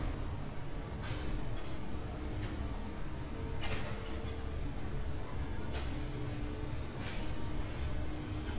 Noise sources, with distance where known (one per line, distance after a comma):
unidentified impact machinery